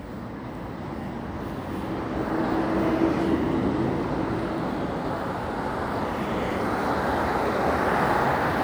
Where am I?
in a residential area